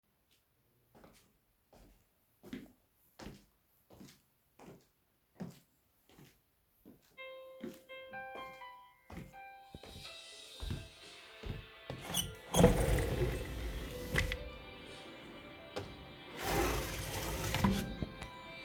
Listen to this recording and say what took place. I walked through the living room toward the balcony window. At the same time, my phone started ringing with a loud notification tone. I reached the window and opened it while the phone was still ringing and I was still moving.